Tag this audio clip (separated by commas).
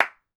Clapping, Hands